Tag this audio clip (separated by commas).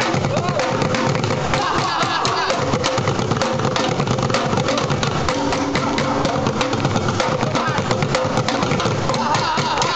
Music, Middle Eastern music, Percussion, Independent music, Exciting music, Pop music